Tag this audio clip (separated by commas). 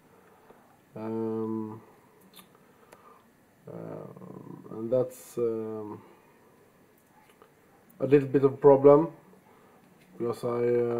Speech